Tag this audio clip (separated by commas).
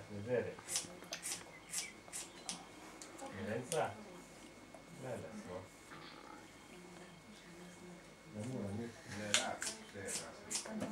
Speech